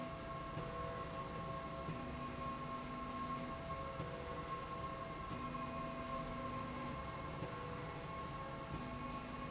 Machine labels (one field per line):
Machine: slide rail